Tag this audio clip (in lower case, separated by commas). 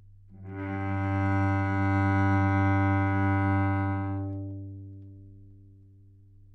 musical instrument, bowed string instrument, music